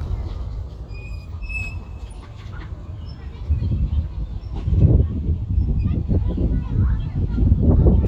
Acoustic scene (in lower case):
residential area